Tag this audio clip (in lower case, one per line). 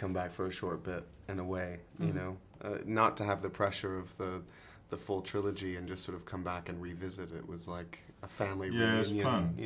speech